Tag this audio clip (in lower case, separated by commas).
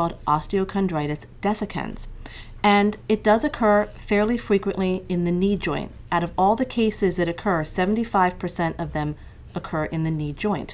speech